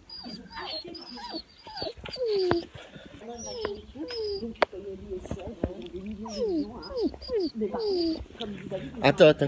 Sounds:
dog whimpering

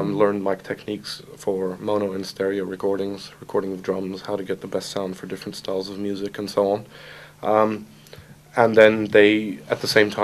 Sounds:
Speech

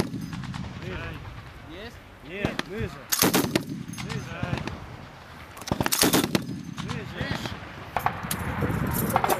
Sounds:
machine gun shooting

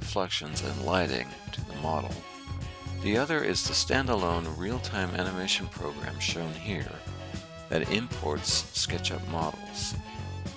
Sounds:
Music, Speech

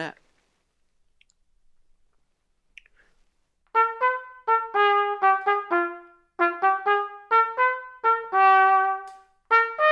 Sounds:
playing cornet

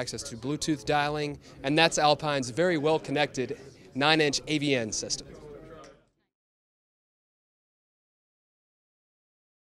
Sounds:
Speech

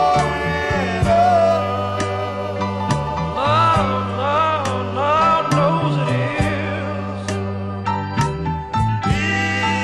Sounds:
Male singing, Music

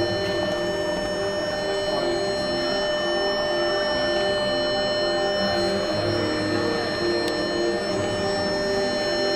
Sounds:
Music

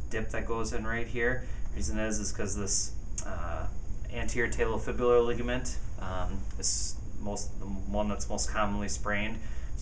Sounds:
Speech

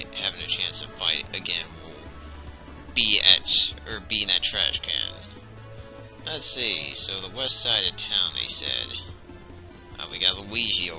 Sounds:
Speech, Music

